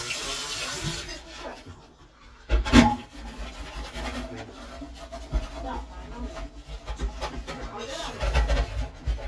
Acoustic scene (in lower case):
kitchen